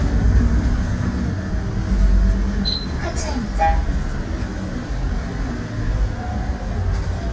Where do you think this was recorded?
on a bus